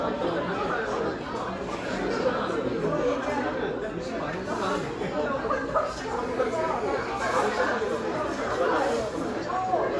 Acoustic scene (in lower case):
crowded indoor space